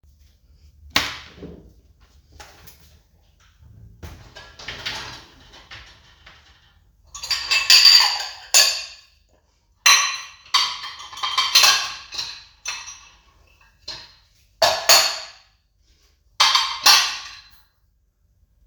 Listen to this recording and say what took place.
I opend the dishwasher and started unloading it.